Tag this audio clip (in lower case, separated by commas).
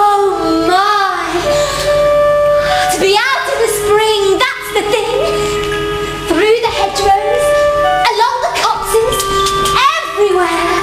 speech, music